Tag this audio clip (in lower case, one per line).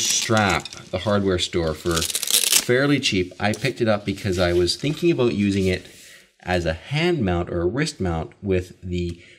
speech